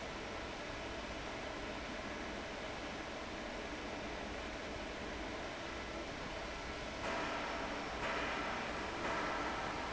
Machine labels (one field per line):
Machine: fan